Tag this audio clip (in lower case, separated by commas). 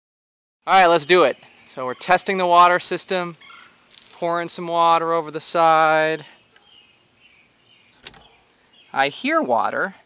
environmental noise, speech